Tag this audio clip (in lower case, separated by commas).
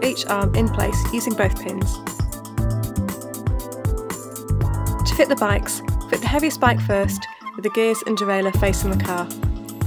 music, speech